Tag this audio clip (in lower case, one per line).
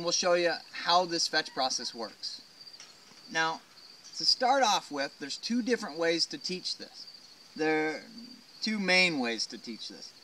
speech